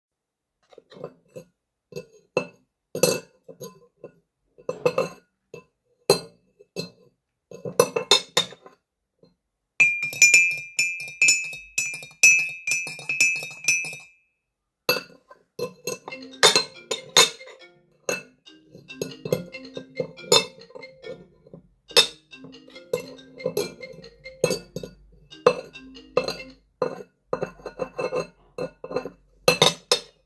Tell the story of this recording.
The device is placed stationary while the scene is recorded. Sounds of dishes are heard first, followed by a spoon clinking in a cup. More dish handling occurs later, and a phone starts ringing while the dish sounds continue in parallel.